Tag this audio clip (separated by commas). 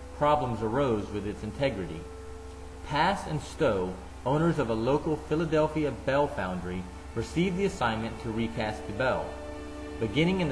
Speech, Music